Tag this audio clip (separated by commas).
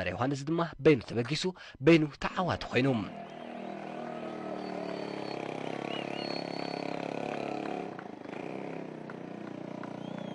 Speech, Vehicle